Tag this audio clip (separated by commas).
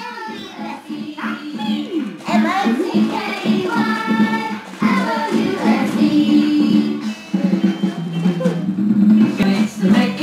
Music, Dance music